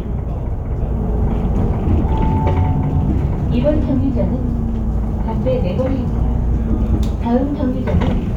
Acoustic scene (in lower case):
bus